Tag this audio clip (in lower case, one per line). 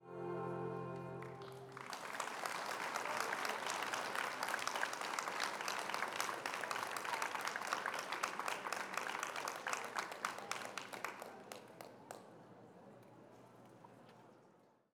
human group actions
applause